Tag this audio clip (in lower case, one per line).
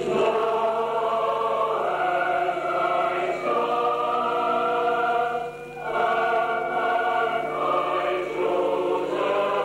chant